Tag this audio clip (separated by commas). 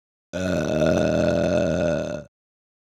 eructation